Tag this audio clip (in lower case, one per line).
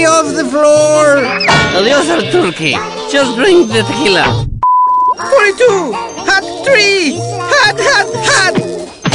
speech
music